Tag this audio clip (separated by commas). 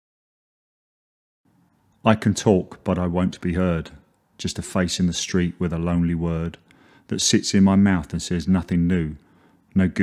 Speech